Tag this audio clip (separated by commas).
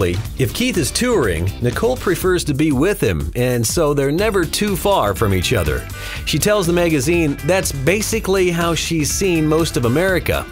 Music, Speech